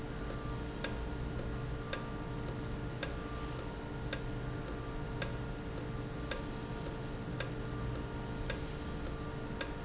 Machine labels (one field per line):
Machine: valve